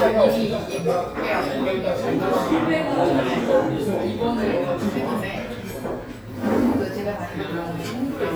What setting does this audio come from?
restaurant